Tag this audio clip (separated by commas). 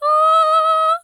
Singing, Human voice, Female singing